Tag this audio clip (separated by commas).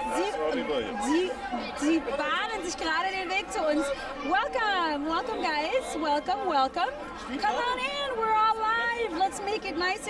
Speech